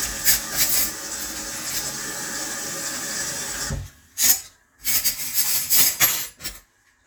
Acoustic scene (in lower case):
kitchen